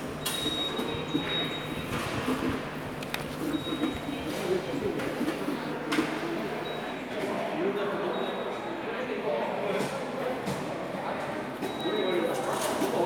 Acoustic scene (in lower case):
subway station